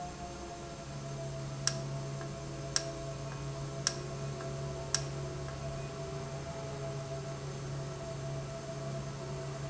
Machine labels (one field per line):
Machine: valve